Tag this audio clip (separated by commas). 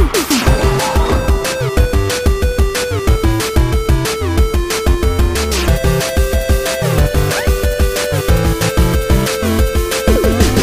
Music